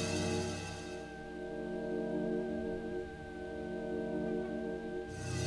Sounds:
Music

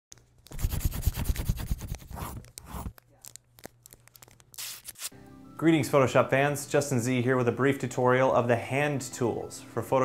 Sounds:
Speech, Music

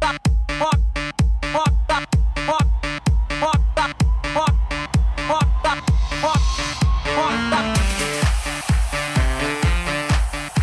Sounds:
Disco, Exciting music, Music, Rhythm and blues, House music, Trance music

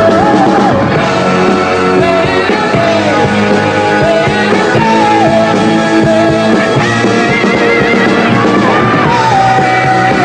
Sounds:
Singing, Music

